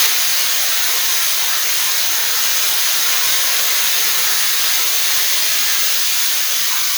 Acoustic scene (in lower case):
restroom